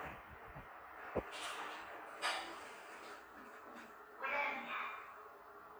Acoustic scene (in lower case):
elevator